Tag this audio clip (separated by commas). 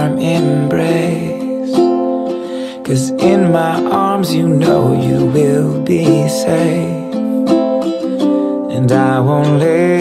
Music